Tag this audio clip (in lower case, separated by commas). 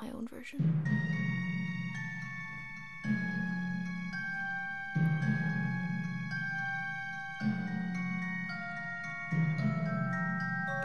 speech, music, woman speaking